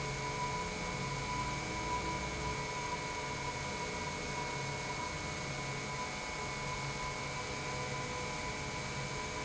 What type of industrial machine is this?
pump